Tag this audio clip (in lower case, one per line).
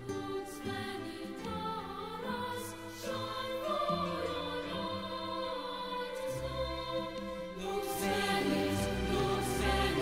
music
opera